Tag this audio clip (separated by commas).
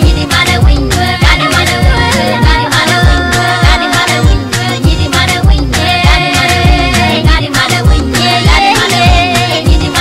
Music